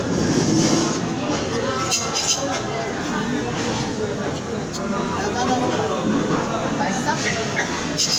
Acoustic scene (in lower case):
crowded indoor space